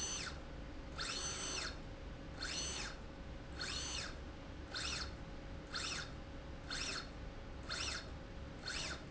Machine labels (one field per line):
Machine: slide rail